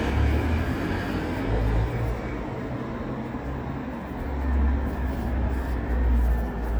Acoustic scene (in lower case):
residential area